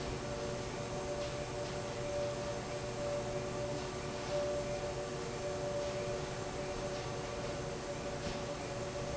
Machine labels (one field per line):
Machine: fan